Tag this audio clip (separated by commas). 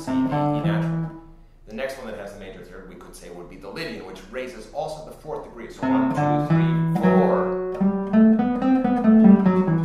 Guitar, Music, Speech, Musical instrument, Plucked string instrument, Acoustic guitar